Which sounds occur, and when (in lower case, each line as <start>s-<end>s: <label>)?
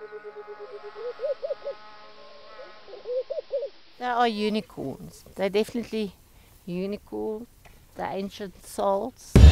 0.0s-1.7s: animal
0.0s-3.9s: buzz
0.0s-9.5s: wind
2.5s-3.7s: animal
3.9s-6.1s: woman speaking
6.3s-6.5s: breathing
6.6s-7.5s: woman speaking
7.7s-7.8s: breathing
7.9s-9.2s: woman speaking